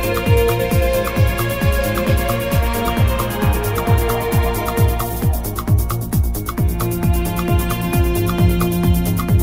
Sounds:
Trance music, Electronic music, Music

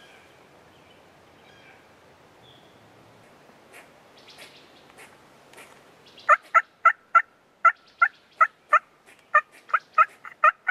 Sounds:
turkey gobbling

